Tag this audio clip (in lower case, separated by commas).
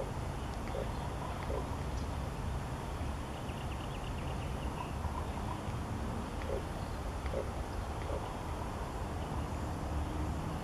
bird, animal